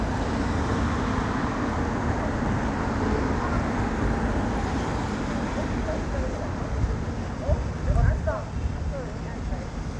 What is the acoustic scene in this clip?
street